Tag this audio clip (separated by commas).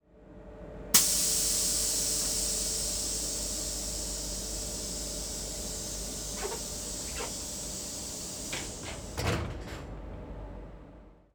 Sliding door, Domestic sounds, Hiss, Door